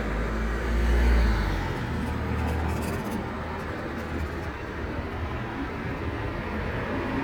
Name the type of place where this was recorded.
street